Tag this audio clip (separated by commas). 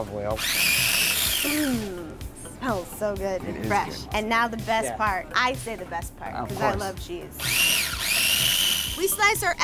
Speech, Blender, Music, inside a small room